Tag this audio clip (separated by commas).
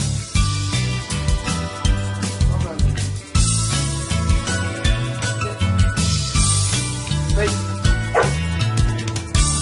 Bow-wow, Animal, Music, Speech, Domestic animals, Dog